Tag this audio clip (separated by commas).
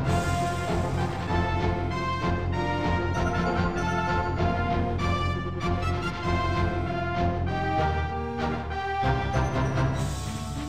Music, Theme music